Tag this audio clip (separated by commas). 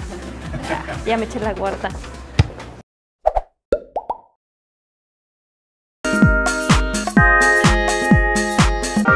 Speech, Plop, Music, woman speaking